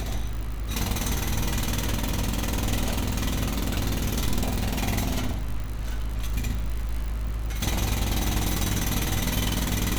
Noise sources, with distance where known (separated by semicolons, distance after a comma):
unidentified impact machinery, near